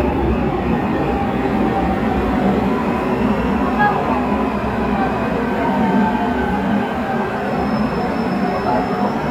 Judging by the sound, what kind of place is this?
subway station